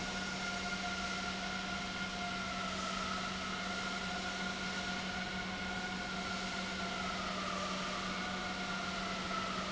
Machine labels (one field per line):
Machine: pump